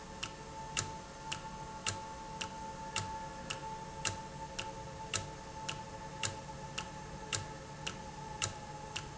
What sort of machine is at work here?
valve